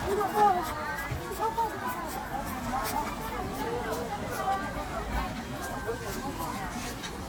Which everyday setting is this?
park